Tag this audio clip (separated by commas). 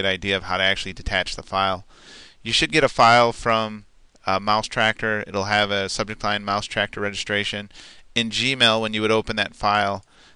Speech